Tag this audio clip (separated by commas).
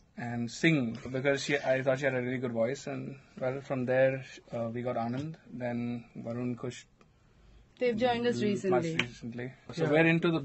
Speech